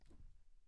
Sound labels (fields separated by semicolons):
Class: cupboard; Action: opening; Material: wooden